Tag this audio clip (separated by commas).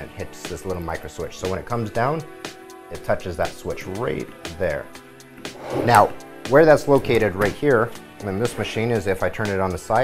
Music, Speech